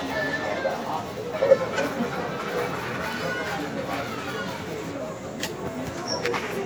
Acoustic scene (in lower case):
crowded indoor space